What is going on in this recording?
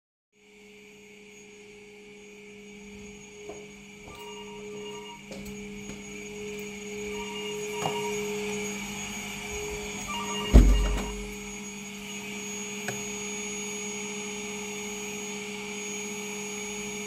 I am away from the vacuum, the phone rings, I walk towards the phone and the vacuum and close the window.